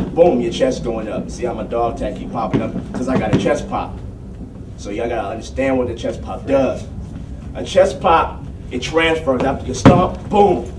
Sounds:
Speech

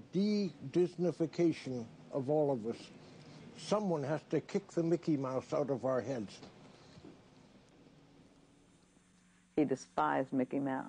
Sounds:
Speech

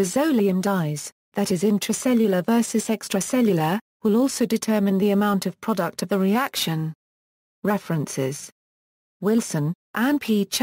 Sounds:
Speech synthesizer

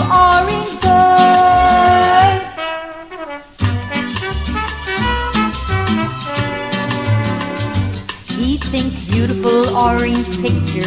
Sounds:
Music

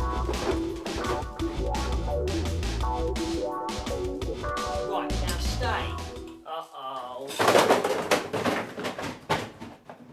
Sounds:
Speech, Music

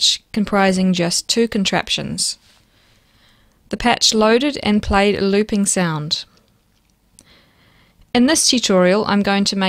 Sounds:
Speech

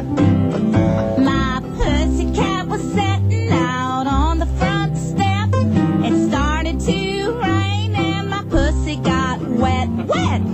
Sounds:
Music

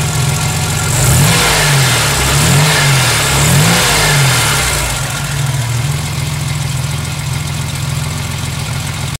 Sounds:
Car, Vehicle, Idling, Medium engine (mid frequency), revving

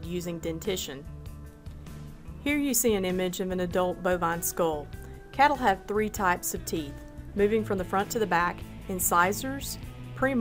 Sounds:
Speech, Music

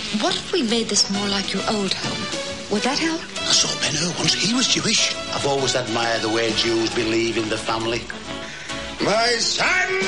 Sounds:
Speech, Music

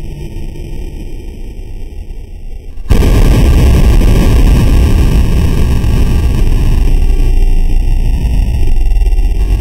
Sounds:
Bang

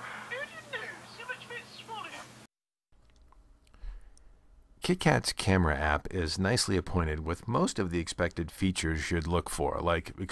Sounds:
Speech, inside a small room

